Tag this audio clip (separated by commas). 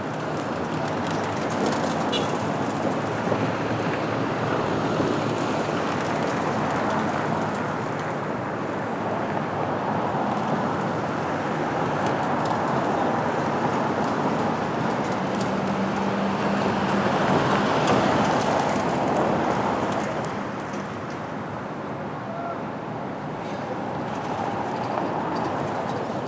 Vehicle, Traffic noise, Motor vehicle (road)